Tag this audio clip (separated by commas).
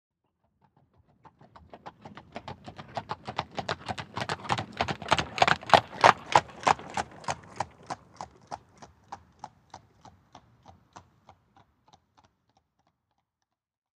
Animal, livestock